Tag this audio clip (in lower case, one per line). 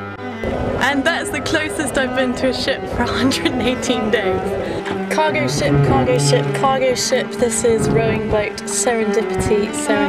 vehicle
speech
water vehicle
music